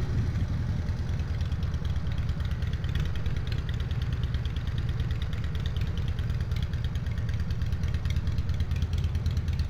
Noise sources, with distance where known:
engine of unclear size

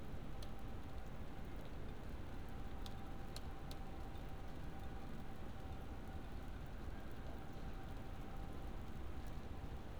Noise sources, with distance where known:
background noise

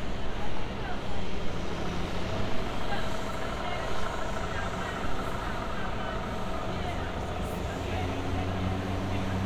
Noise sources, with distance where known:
large-sounding engine, near; person or small group talking, near

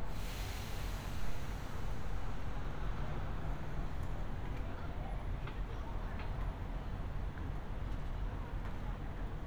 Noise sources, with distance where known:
large-sounding engine; person or small group talking

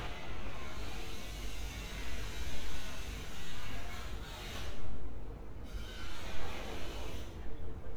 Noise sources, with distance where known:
small or medium rotating saw, far

